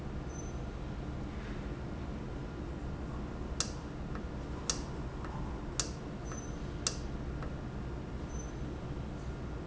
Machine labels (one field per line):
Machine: valve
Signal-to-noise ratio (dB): -6 dB